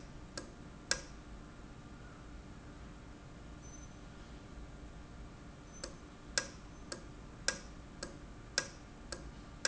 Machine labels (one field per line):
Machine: valve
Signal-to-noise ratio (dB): 6 dB